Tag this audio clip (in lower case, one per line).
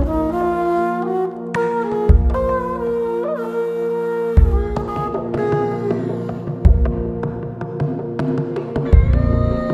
music